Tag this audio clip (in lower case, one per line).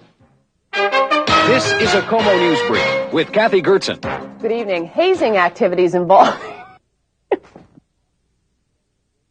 speech
music